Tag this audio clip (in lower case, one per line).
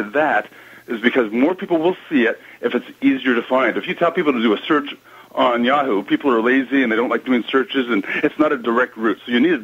speech